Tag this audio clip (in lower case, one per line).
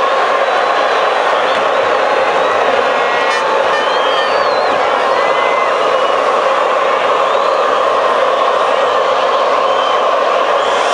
speech